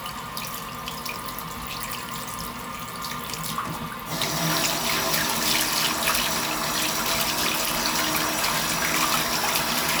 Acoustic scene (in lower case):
restroom